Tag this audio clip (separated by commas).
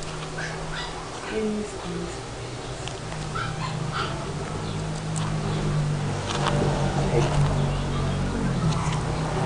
Dog, Speech, Animal, pets